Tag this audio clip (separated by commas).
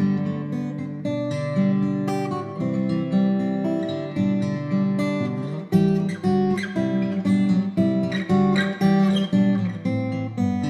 Music, Acoustic guitar, Musical instrument, Plucked string instrument, Guitar